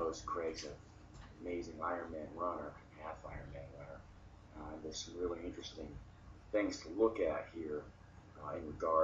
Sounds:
Speech

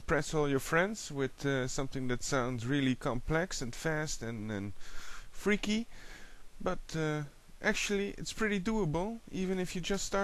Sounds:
Speech

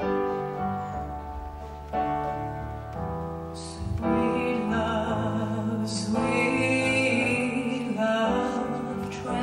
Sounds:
Female singing, Music

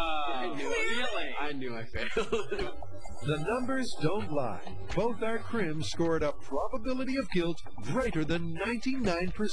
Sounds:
Speech

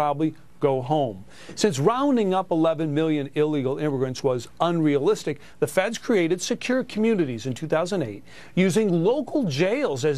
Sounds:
Speech

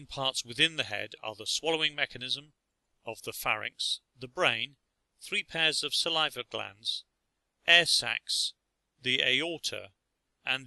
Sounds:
Speech

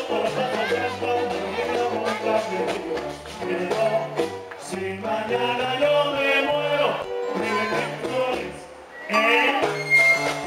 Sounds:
Pizzicato, Bowed string instrument, fiddle, Zither

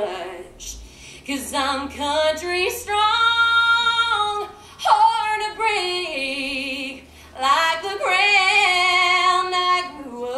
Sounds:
inside a large room or hall

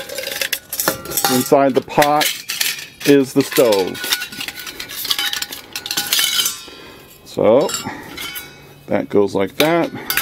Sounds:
Speech

